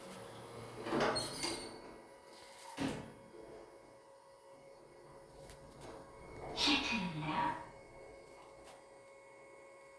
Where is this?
in an elevator